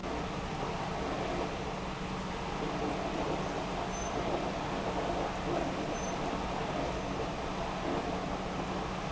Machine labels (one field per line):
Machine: pump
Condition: abnormal